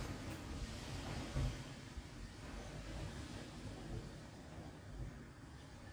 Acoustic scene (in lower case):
street